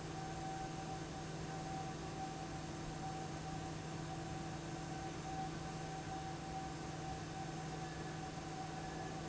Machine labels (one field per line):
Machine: fan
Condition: abnormal